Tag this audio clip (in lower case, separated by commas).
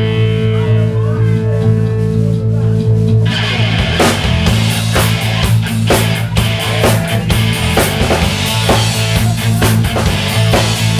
music, progressive rock, dance music, speech